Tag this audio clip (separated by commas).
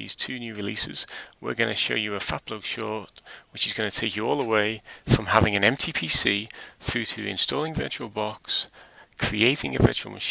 Speech